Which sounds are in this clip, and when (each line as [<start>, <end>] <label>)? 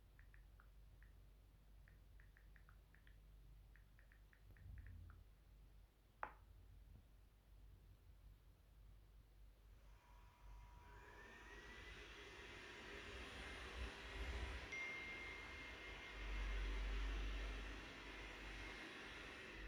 [10.00, 19.68] vacuum cleaner
[14.52, 16.48] phone ringing